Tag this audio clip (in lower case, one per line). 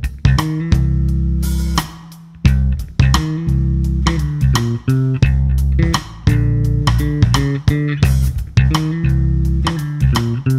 playing bass drum